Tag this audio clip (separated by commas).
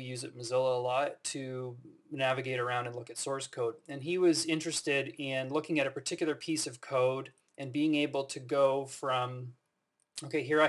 Speech